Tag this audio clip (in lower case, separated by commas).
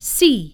human voice, speech, female speech